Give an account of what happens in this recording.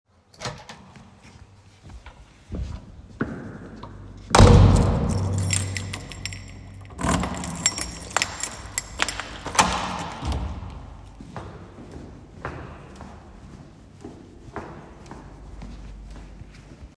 I opened and closed the door. I insert the key in the keyhole to lock it and leave thorugh the hallway.